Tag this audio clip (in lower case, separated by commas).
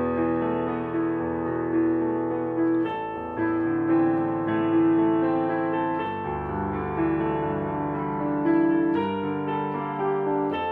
keyboard (musical), musical instrument, piano, music